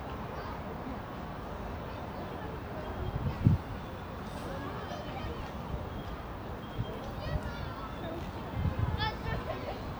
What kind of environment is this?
residential area